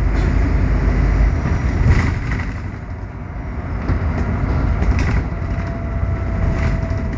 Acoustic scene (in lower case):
bus